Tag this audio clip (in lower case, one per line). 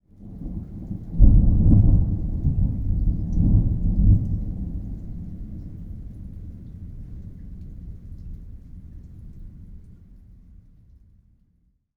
rain
thunderstorm
water
thunder